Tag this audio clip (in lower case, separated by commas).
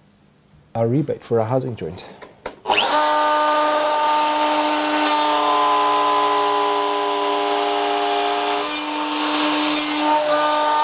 speech, tools